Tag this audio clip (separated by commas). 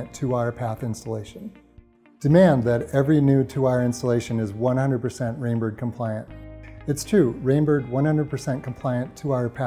Speech, Music